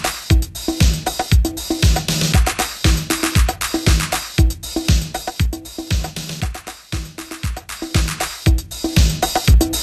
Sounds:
Music, Sampler

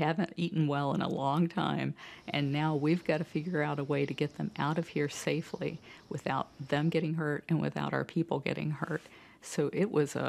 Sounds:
Speech

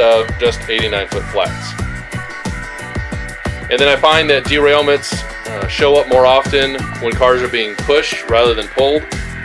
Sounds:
Music, Speech

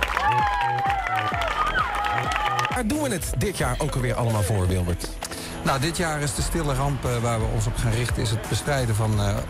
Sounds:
Music, Run, Speech

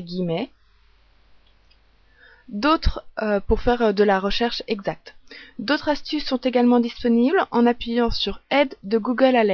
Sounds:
Speech

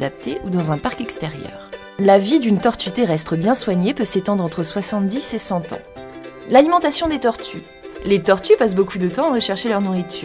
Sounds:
Speech, Music

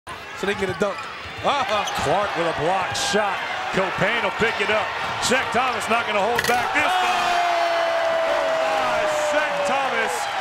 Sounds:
Basketball bounce

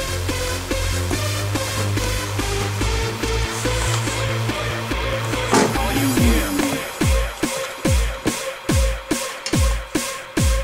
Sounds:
Electronic dance music

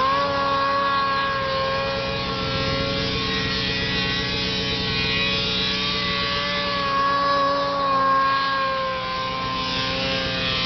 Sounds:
Vehicle

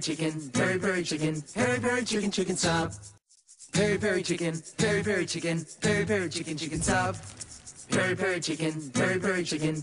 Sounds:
Music

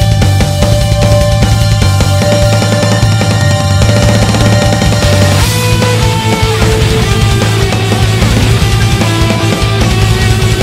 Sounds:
Bass guitar, Electric guitar, Musical instrument, Music

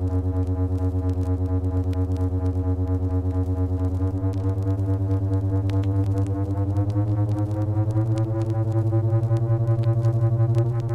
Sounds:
Rustle

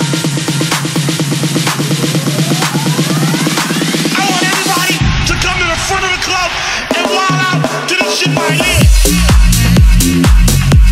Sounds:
Electronic dance music, Music

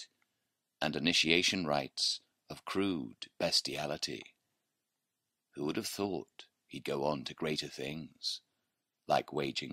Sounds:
Speech

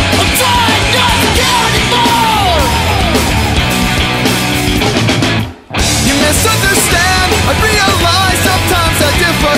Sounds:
Music

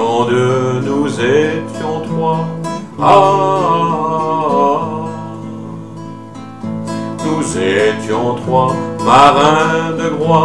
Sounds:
Music

